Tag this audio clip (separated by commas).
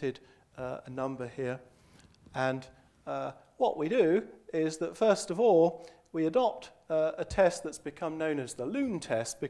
Speech